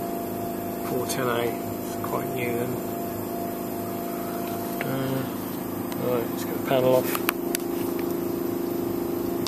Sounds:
Speech

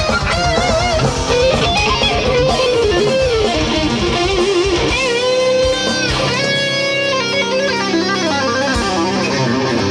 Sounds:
Guitar, Strum, Musical instrument, Music, Electric guitar, Plucked string instrument

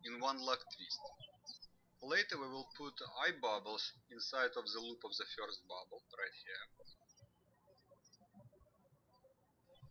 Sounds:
Speech

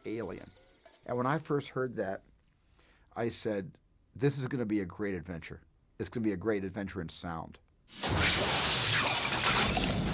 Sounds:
Speech

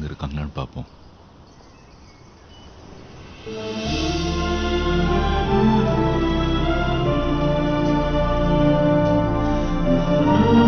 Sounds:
Speech, Music

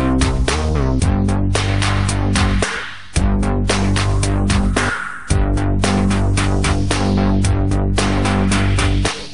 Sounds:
Music

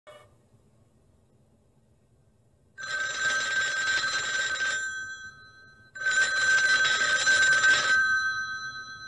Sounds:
Telephone bell ringing

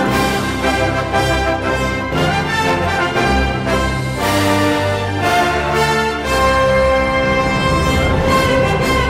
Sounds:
Music

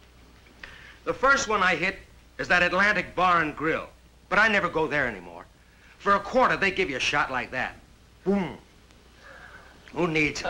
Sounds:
Speech

